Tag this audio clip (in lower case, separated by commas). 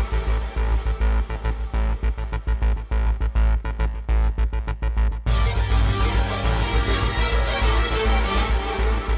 music, sound effect